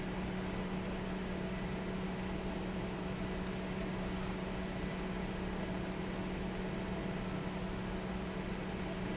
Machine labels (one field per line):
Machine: fan